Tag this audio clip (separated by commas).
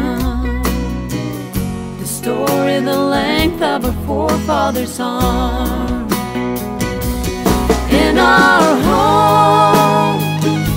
Music